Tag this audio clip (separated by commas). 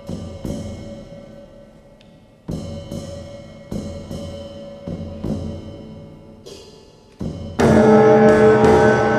Music